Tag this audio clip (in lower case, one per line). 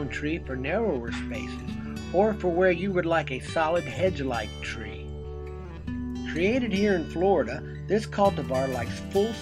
music
speech